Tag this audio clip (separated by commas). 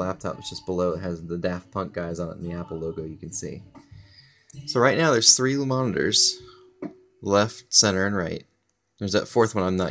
Speech